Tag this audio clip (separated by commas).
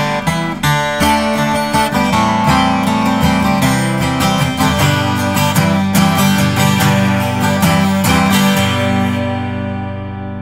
Musical instrument, Plucked string instrument, Strum, Guitar, Acoustic guitar, Music